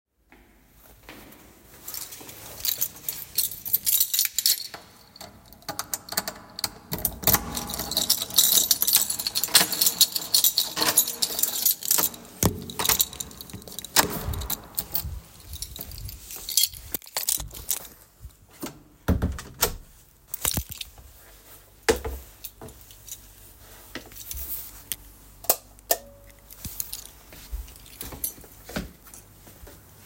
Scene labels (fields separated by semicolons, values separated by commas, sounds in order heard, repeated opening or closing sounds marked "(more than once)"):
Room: hallway, living room; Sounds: keys, door (more than once), footsteps, light switch